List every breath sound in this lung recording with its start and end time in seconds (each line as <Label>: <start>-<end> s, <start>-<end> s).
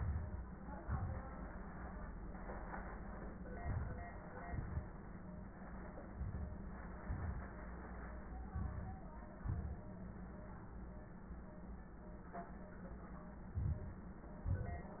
Inhalation: 0.00-0.44 s, 3.62-4.06 s, 6.11-6.62 s, 8.54-9.01 s, 13.60-14.08 s
Exhalation: 0.80-1.24 s, 4.50-4.88 s, 7.08-7.55 s, 9.39-9.87 s, 14.48-14.95 s